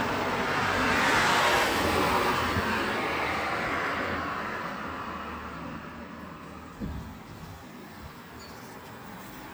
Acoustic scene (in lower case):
street